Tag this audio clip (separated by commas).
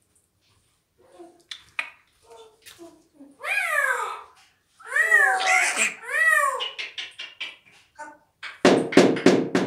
parrot talking